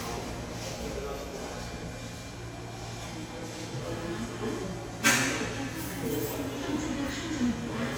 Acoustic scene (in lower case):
subway station